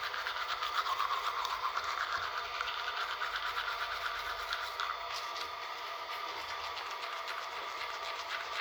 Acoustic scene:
restroom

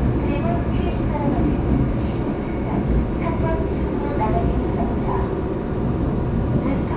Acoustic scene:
subway train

